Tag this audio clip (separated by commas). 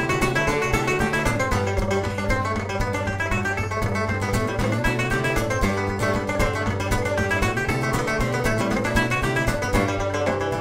Music, Banjo, Guitar, Plucked string instrument, Country, playing banjo, Musical instrument